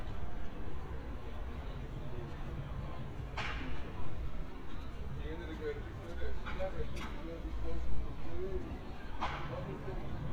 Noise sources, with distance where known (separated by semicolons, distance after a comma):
person or small group talking